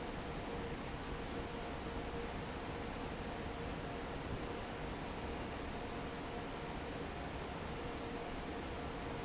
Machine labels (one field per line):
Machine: fan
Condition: normal